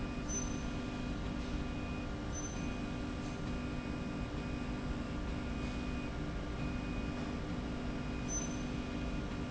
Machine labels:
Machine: slide rail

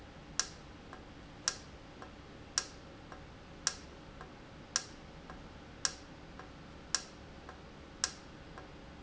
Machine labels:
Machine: valve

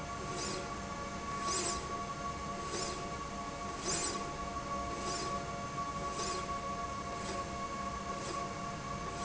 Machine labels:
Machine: slide rail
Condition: normal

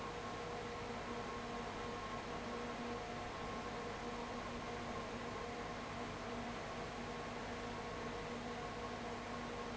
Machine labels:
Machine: fan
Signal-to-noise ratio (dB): 6 dB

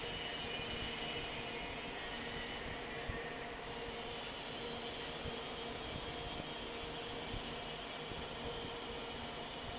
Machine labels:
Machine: fan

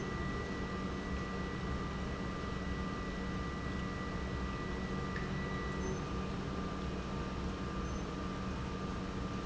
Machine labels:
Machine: pump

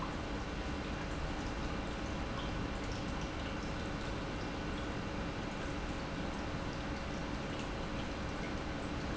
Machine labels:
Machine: pump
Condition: normal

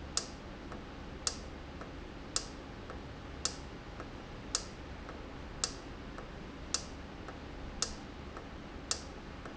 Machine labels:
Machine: valve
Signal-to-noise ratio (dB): 0 dB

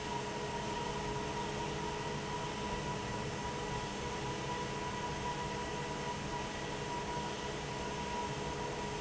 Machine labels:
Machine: fan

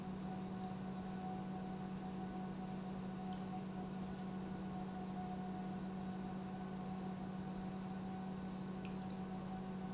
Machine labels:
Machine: pump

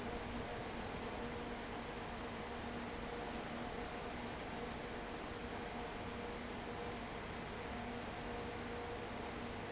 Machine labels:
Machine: fan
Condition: abnormal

